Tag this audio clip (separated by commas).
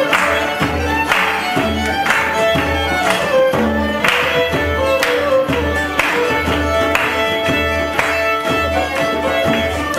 Music, Traditional music